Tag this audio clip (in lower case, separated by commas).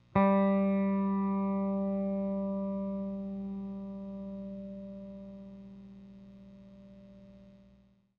plucked string instrument, guitar, electric guitar, music, musical instrument